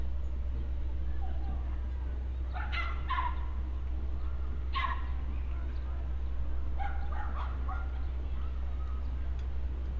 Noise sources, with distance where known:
dog barking or whining, near

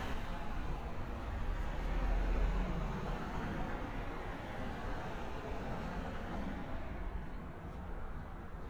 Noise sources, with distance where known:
medium-sounding engine, near

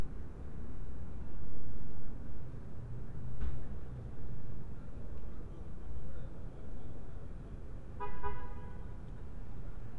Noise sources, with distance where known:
car horn, far

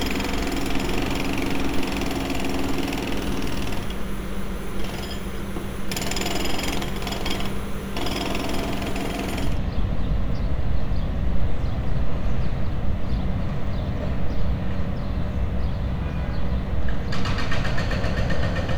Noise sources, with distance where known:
unidentified impact machinery

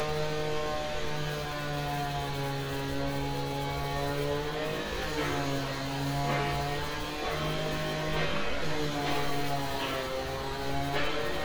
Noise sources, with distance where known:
large-sounding engine; non-machinery impact; chainsaw

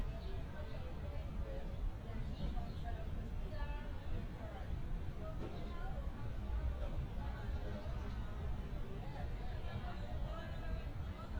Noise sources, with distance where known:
unidentified human voice, far

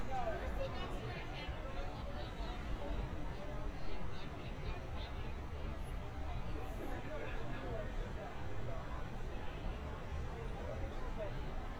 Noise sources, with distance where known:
person or small group shouting, far

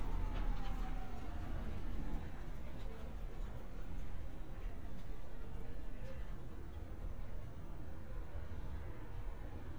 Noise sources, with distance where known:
siren, far

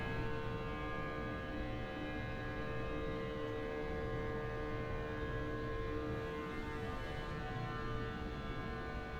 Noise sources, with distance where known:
unidentified powered saw, far

